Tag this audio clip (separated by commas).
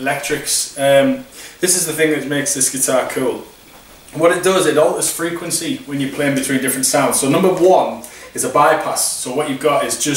Speech